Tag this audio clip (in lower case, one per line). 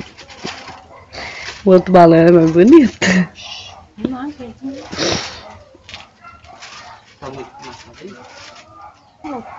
speech